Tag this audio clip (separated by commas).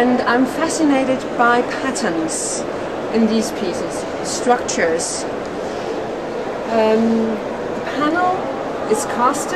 Speech